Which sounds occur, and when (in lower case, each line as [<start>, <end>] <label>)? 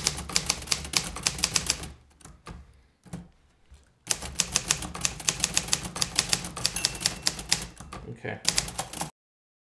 [0.00, 1.88] typewriter
[0.00, 9.10] background noise
[2.09, 2.28] typewriter
[2.42, 2.58] typewriter
[2.99, 3.27] typewriter
[3.62, 3.87] generic impact sounds
[4.05, 8.00] typewriter
[6.73, 8.00] ding
[8.05, 8.39] male speech
[8.43, 9.10] typewriter